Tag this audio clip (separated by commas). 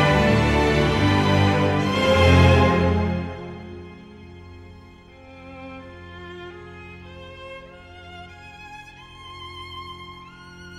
Music, Cello